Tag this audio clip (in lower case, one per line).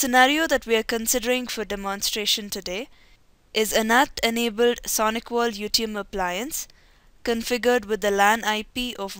speech